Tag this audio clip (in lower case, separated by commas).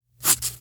domestic sounds, writing